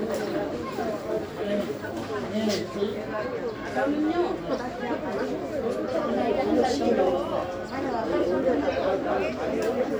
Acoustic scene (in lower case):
park